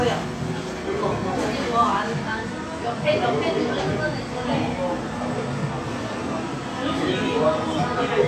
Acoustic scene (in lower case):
cafe